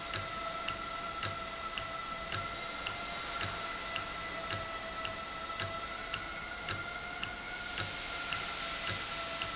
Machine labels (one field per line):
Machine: valve